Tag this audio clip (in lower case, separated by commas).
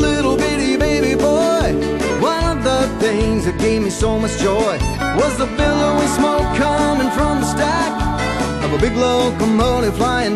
happy music, music, funk